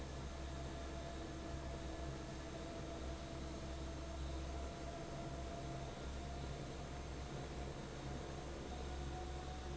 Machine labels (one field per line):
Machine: fan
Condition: normal